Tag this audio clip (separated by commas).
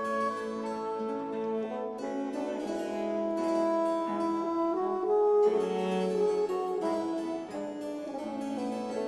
Music, Harpsichord, Cello